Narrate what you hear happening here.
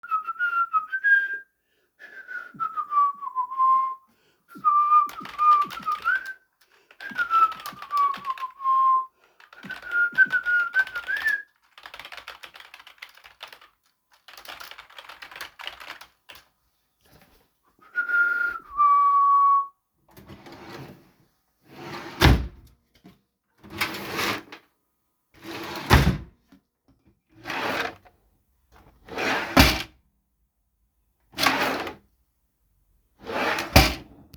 I placed the device in the bedroom, opened and closed a wardrobe or drawer, and also produced keyboard typing sounds. Both target events are clearly audible in the same scene.